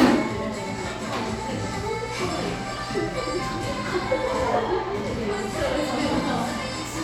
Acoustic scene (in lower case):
cafe